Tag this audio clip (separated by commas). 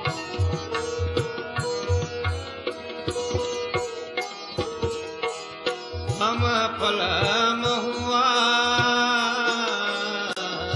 Background music, Music